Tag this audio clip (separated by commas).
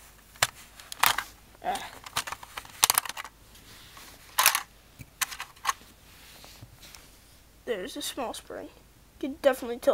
cap gun shooting